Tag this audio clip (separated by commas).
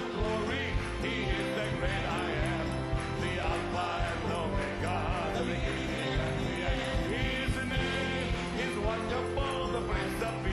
Music